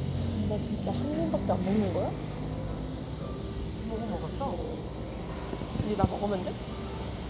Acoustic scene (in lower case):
cafe